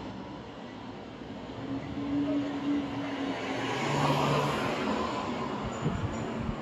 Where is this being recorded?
on a street